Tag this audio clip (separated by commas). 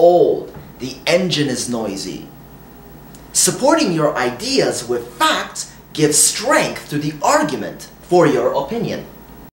Speech